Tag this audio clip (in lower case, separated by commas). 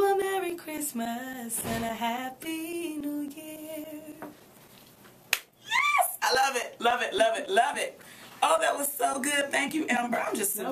music, speech